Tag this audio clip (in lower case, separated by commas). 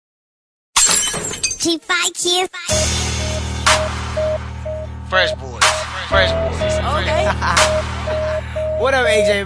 shatter, speech, music